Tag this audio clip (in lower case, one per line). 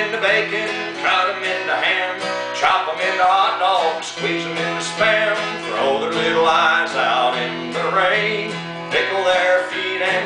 singing
plucked string instrument
musical instrument
music
guitar